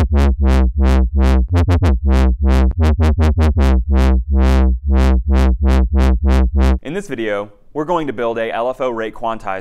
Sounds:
Synthesizer, inside a small room, Speech, Music

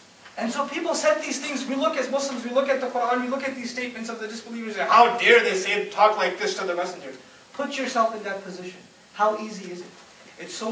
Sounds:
Speech, man speaking, Narration

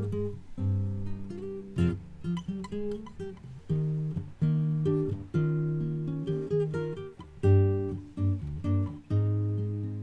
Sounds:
Musical instrument, Guitar, Strum, Plucked string instrument, Music

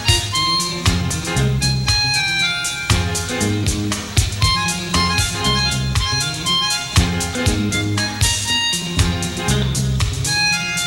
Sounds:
Music

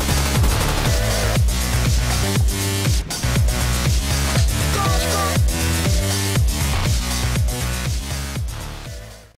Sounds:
Music

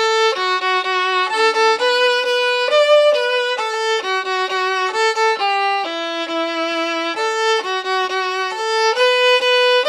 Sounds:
Music, fiddle, Musical instrument

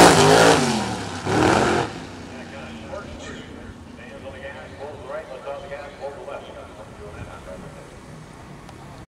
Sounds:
Speech

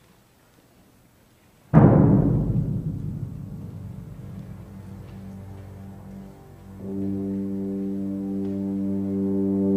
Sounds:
Musical instrument, Music, fiddle

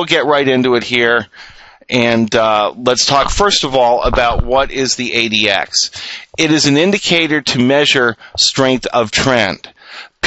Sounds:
Speech

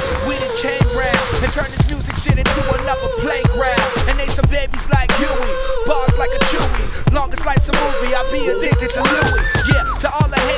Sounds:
Music, Echo

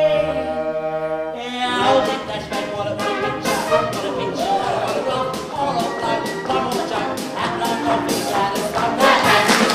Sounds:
Music

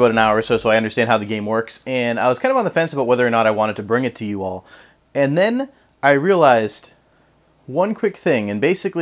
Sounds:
Speech

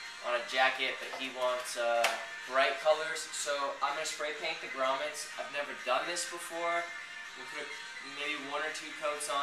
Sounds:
Music, Speech

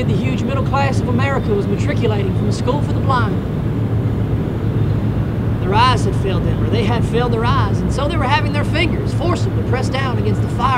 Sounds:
Speech

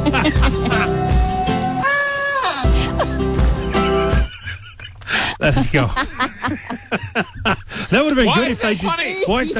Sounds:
Music, Speech

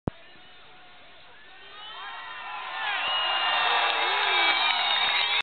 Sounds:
Speech

